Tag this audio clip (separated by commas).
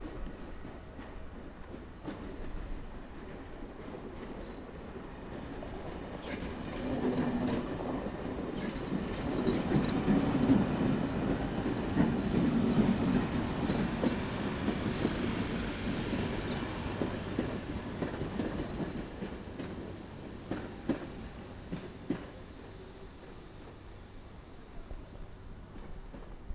Rail transport, Train, Vehicle